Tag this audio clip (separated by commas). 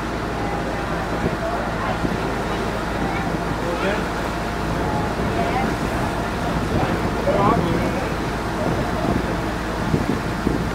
Vehicle, Speech, speedboat